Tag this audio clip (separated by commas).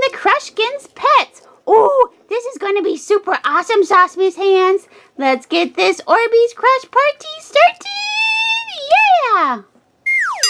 Speech